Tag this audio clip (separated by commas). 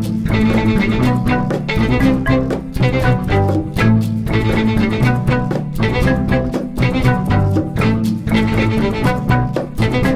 Music, Percussion